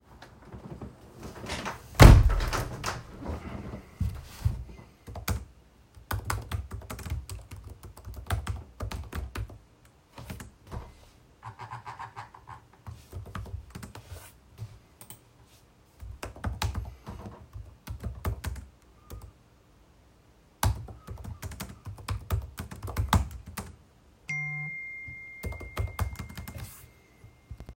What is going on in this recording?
I closed the window and started working on my laptop. While I was doing that, I got a text message.